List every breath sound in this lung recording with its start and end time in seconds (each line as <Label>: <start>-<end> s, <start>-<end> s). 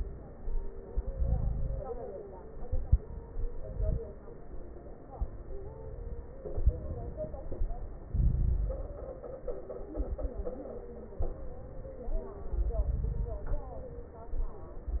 Inhalation: 0.87-1.99 s, 3.31-4.03 s, 6.54-7.64 s, 8.11-9.01 s, 12.50-13.59 s
Crackles: 0.87-1.99 s, 3.31-4.03 s, 6.54-7.64 s, 8.11-9.01 s, 12.50-13.59 s